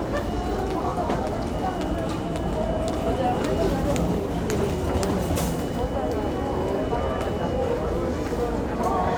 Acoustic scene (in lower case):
crowded indoor space